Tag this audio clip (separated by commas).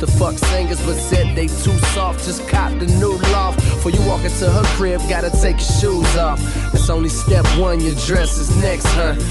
Music